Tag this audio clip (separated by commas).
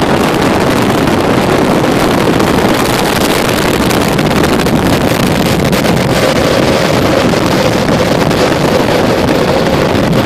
Vehicle